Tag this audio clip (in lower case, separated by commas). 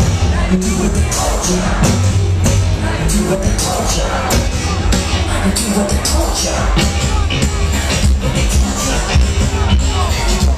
rhythm and blues, music